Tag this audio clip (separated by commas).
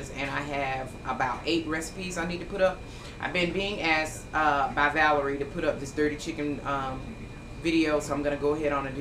Speech